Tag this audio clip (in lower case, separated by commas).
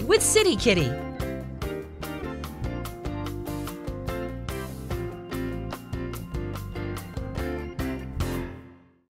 music, speech